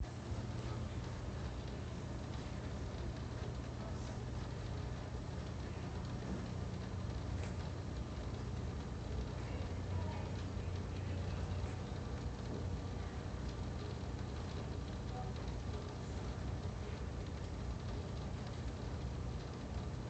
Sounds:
Rain, Water

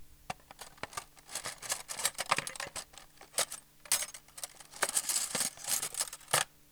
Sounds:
home sounds, Cutlery

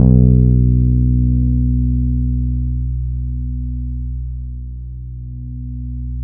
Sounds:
Music, Plucked string instrument, Musical instrument, Guitar, Bass guitar

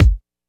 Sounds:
Drum, Percussion, Musical instrument, Music, Bass drum

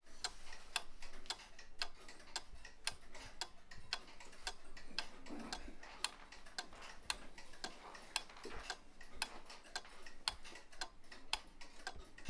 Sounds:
Mechanisms, Clock, Tick-tock

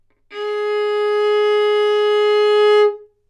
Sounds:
Musical instrument, Music, Bowed string instrument

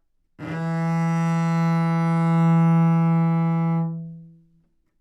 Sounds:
Bowed string instrument, Musical instrument, Music

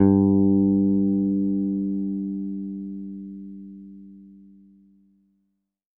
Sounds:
Plucked string instrument, Music, Guitar, Musical instrument, Bass guitar

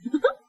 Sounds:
Laughter, Giggle, Human voice

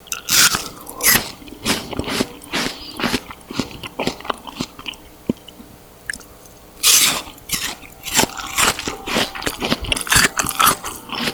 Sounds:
mastication

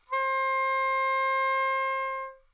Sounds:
Musical instrument, Wind instrument, Music

